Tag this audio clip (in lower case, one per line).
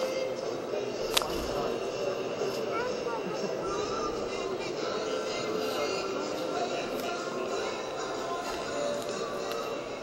music
speech